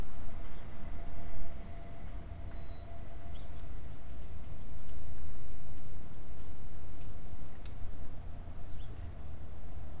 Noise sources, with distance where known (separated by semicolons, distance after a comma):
background noise